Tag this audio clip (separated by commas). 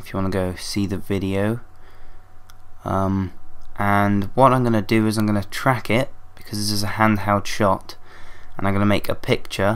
Speech